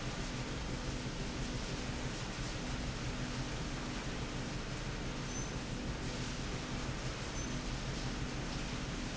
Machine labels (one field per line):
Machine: slide rail